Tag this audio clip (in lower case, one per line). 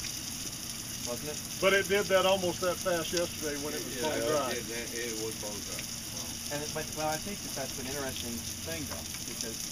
speech